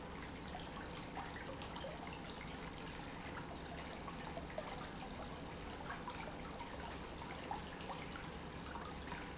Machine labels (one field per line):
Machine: pump